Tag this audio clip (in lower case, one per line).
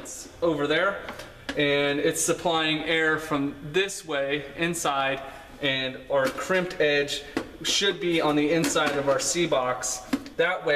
speech